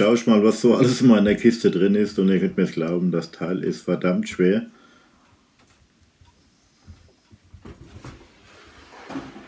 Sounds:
Speech

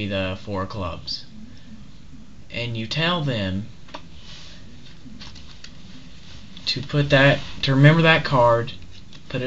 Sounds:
Speech

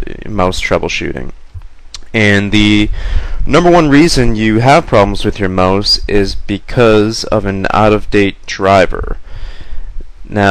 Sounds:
Speech

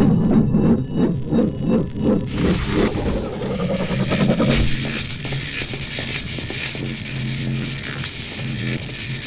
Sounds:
inside a large room or hall

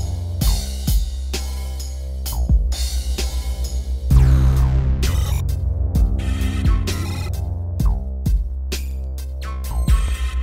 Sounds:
Music

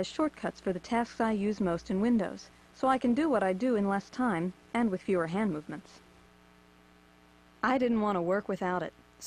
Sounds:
Speech

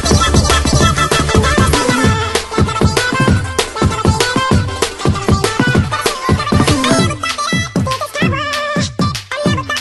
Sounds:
Music

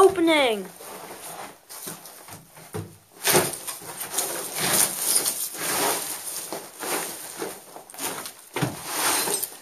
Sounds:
Speech

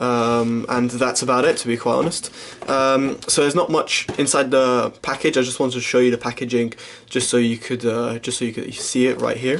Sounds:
Speech

